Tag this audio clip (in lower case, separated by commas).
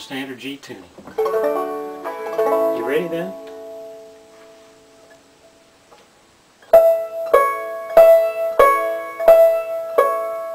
speech, music